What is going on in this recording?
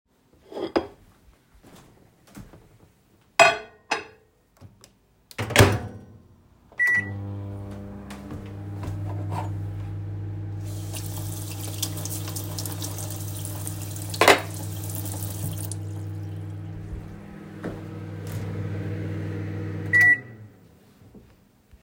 I took plate and placed it in microwave. Then I pressed a button to start it. I walked to the sink, took a spoon and rinsed it. Finally, microwave finished.